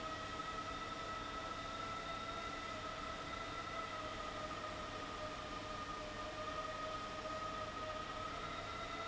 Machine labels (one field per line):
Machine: fan